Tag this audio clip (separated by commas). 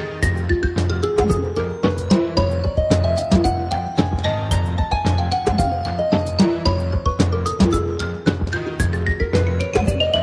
Music